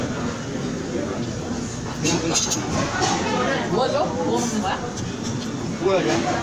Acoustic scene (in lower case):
crowded indoor space